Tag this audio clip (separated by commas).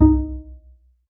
Music, Bowed string instrument, Musical instrument